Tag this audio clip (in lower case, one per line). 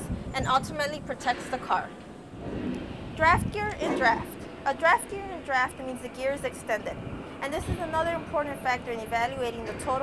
speech